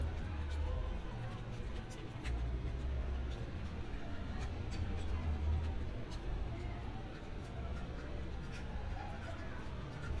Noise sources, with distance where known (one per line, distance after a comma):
non-machinery impact, near
person or small group talking, far